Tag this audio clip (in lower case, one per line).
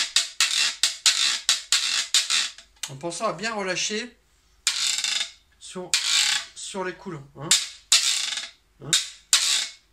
playing guiro